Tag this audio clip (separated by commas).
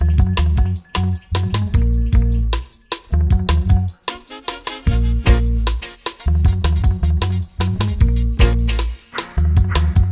Music